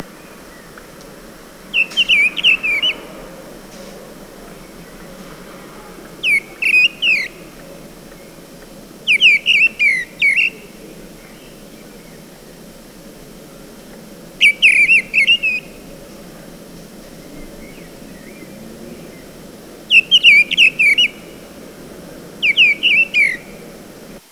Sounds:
Wild animals, bird song, Bird, Animal

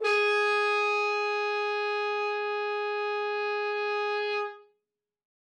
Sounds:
Brass instrument, Music, Musical instrument

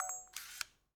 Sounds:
Mechanisms, Camera

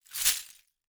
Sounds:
Glass

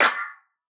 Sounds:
Clapping, Hands

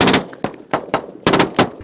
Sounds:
gunfire, Explosion

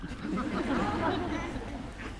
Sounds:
Crowd, Human voice, Human group actions, Laughter

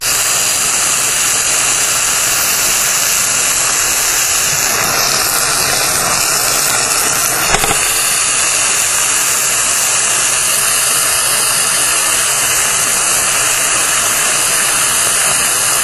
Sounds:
Frying (food), home sounds

